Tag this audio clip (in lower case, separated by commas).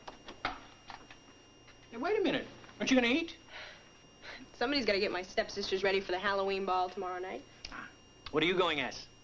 speech